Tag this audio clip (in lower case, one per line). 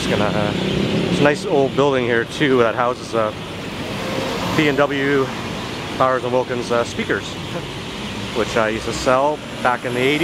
speech